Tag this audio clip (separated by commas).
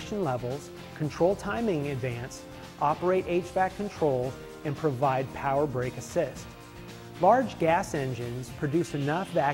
Music, Speech